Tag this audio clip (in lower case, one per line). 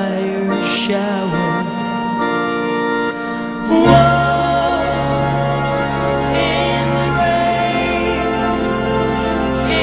music